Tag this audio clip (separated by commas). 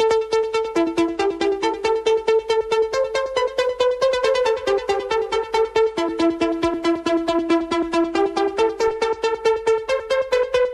Music, Techno